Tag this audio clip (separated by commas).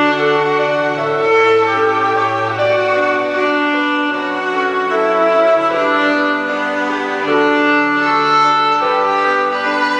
Violin, Music, Musical instrument